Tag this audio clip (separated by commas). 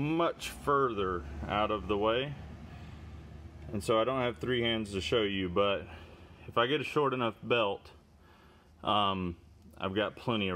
running electric fan